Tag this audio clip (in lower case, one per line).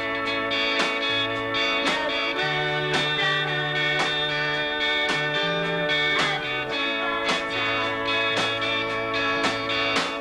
musical instrument
guitar
singing
drum
music
drum kit